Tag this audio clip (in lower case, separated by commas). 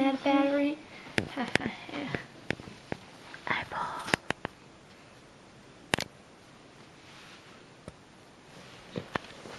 speech